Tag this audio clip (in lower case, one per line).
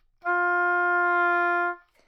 musical instrument
music
woodwind instrument